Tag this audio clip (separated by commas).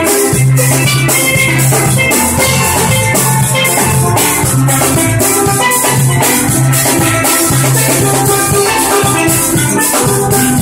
playing steelpan